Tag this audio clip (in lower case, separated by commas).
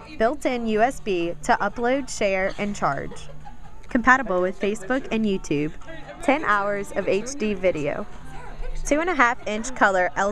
speech